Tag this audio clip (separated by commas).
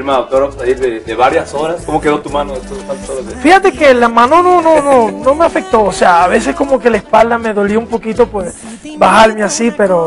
Speech, Music